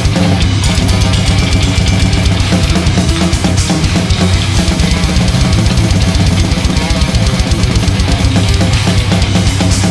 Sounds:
playing bass drum

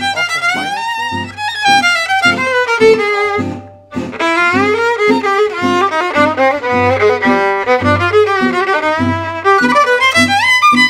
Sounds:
musical instrument, violin, music

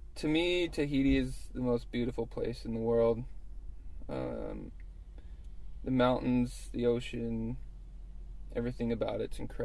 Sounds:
speech

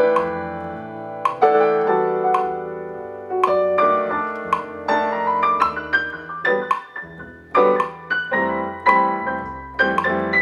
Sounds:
metronome

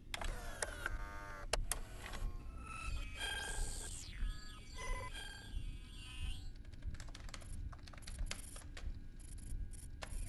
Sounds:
inside a small room

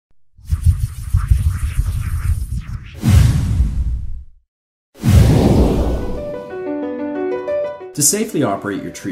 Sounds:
music, speech

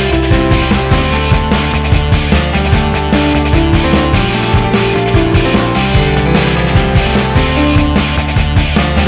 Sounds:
rhythm and blues, music

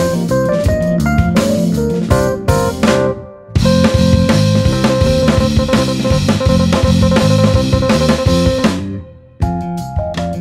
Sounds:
music

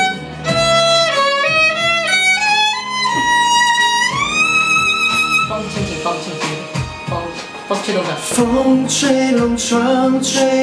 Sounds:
fiddle, singing, speech, music

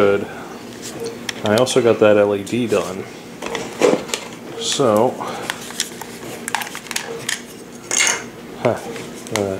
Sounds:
speech, inside a small room

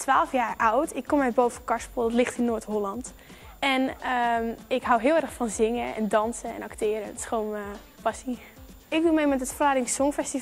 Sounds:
music, speech

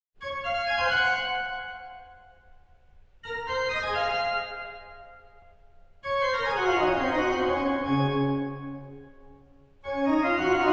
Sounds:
music, musical instrument

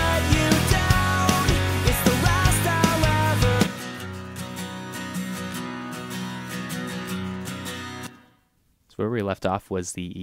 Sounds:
music, musical instrument, guitar, plucked string instrument, speech

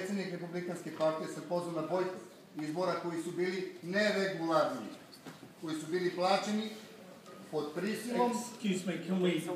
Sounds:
man speaking, speech, narration

